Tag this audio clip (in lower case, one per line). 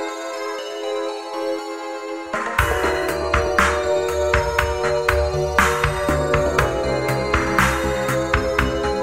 music